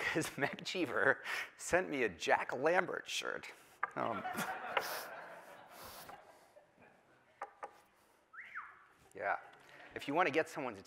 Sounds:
speech
male speech
narration

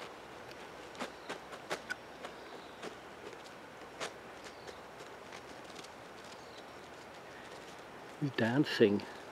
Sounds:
speech

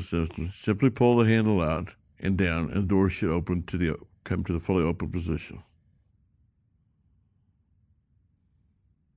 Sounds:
speech

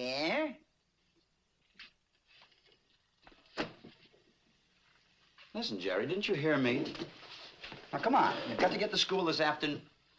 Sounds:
speech

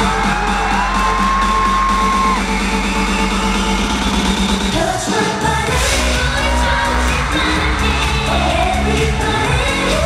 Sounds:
dance music
music

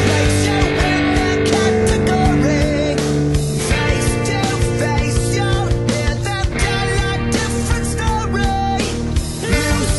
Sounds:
strum
bass guitar
music
acoustic guitar
plucked string instrument
guitar
playing bass guitar
electric guitar
musical instrument

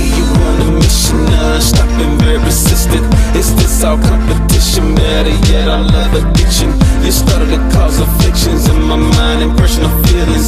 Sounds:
music

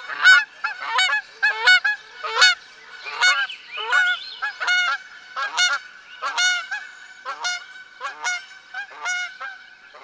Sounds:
honk
fowl
bird
goose
tweet
bird call

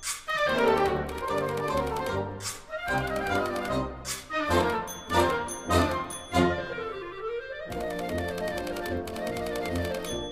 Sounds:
orchestra
music

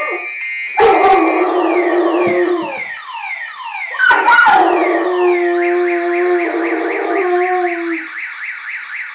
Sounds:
domestic animals
yip
bow-wow
dog
animal
whimper (dog)

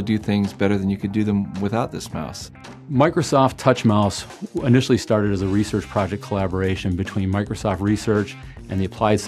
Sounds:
speech
music

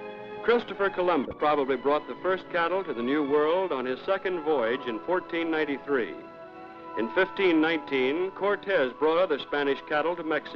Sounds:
speech
music

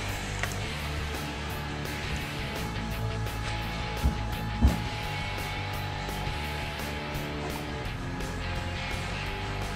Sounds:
music

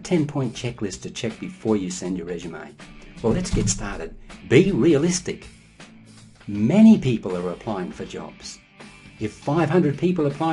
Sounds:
speech
music

